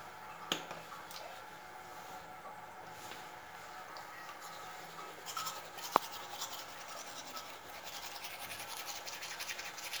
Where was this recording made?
in a restroom